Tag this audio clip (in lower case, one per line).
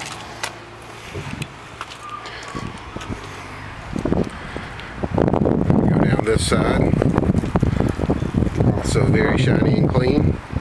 speech
outside, urban or man-made